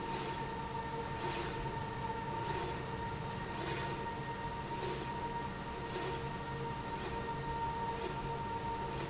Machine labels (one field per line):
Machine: slide rail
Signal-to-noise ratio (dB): -6 dB